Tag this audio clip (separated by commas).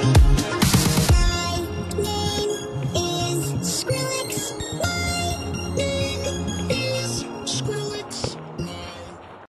Music